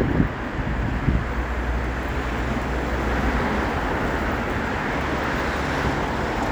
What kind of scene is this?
street